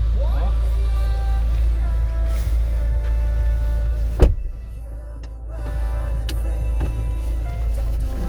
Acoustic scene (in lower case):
car